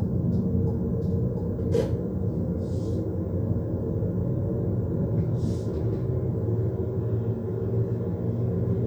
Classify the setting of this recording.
car